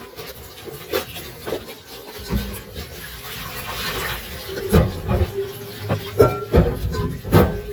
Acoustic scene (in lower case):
kitchen